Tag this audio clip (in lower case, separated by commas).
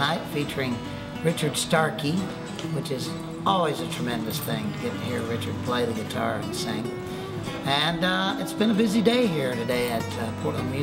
speech, music